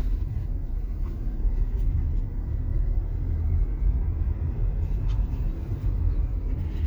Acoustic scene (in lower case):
car